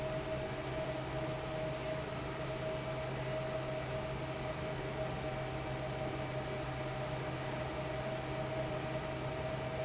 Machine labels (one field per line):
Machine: fan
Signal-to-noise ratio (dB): -6 dB